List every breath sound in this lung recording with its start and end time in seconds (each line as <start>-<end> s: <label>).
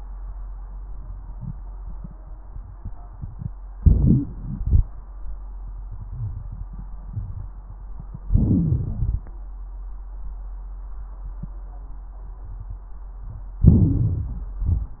3.76-4.88 s: inhalation
3.76-4.88 s: crackles
8.28-9.40 s: inhalation
8.28-9.40 s: crackles
13.58-14.63 s: crackles
13.60-14.64 s: inhalation
14.66-15.00 s: exhalation
14.66-15.00 s: crackles